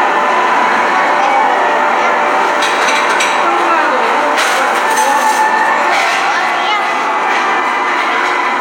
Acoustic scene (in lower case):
cafe